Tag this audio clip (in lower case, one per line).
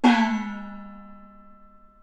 gong
music
percussion
musical instrument